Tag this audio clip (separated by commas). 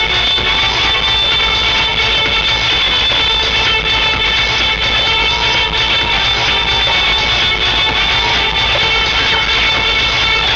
Musical instrument, Music